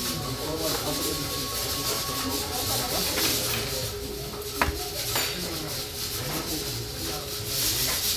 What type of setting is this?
restaurant